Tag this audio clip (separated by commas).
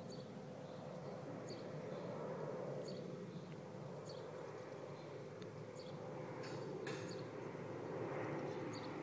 Animal